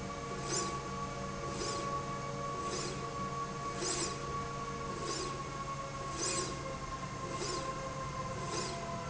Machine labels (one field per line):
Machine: slide rail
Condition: normal